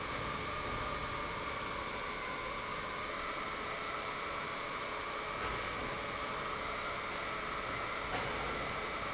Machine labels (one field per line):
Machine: pump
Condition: normal